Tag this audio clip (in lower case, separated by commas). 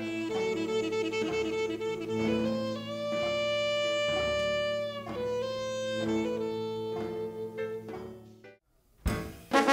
music, orchestra, musical instrument, jazz